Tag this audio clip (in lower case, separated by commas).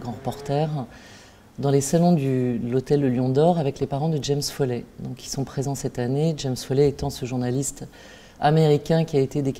speech